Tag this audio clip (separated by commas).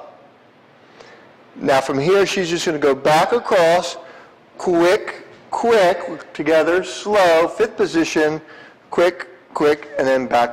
Speech